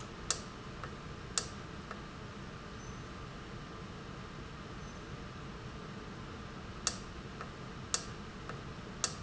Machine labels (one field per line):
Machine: valve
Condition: normal